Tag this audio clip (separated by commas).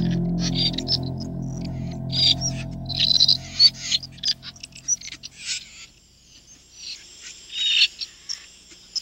Music